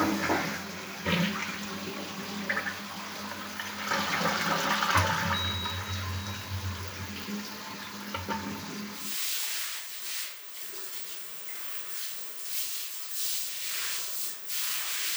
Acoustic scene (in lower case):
restroom